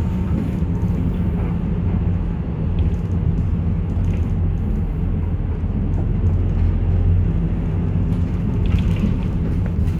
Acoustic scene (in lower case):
bus